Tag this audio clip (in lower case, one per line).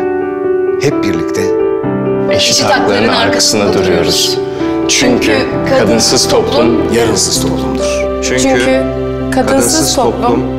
music
speech